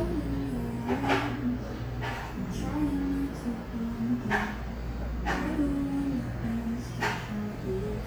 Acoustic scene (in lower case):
cafe